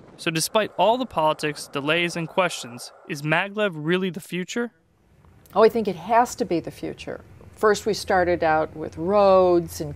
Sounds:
outside, rural or natural
speech
inside a small room

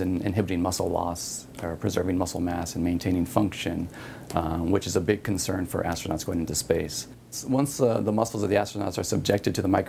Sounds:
speech

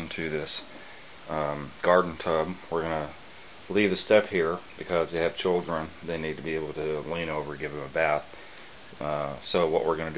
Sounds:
speech

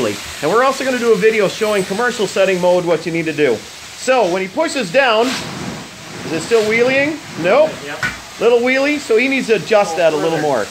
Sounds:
speech

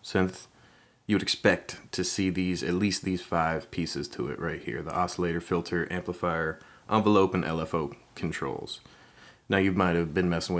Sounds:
speech

